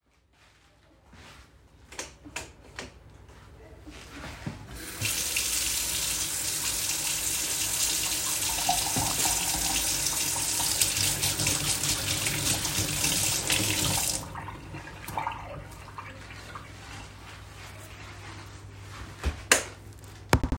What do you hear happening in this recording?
I switched on the kitchen light and opened the water tap. I washed my hands under running water, I turned off the water and then dried them. After finishing, I switched off the light.